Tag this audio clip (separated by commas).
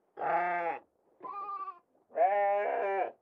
livestock, Animal